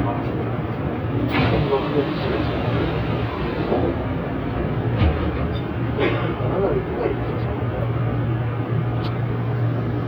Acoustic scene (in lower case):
subway train